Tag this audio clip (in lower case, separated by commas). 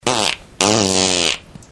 fart